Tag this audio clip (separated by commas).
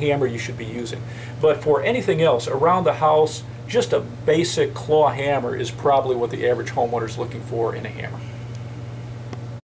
Speech